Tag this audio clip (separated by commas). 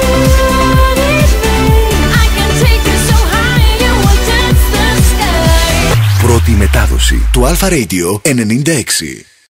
Music, Speech